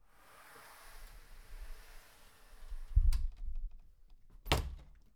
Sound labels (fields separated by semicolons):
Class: door; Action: closing